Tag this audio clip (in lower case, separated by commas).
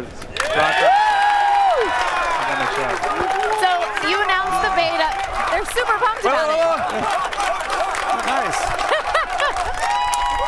speech